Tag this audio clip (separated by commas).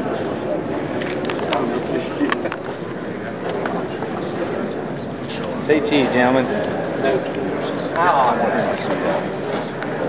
Speech